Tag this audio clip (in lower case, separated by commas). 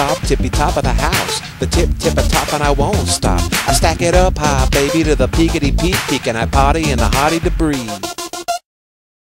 rapping, music